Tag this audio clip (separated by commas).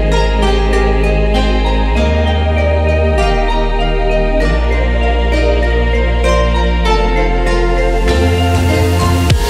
Music